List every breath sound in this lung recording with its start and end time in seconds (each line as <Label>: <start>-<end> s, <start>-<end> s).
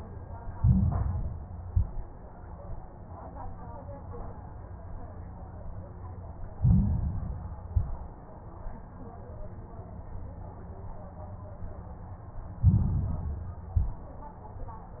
Inhalation: 0.51-1.59 s, 6.54-7.62 s, 12.56-13.68 s
Exhalation: 1.61-2.18 s, 7.66-8.23 s, 13.72-14.29 s
Crackles: 0.51-1.59 s, 1.61-2.18 s, 6.54-7.62 s, 7.66-8.23 s, 12.56-13.68 s, 13.72-14.29 s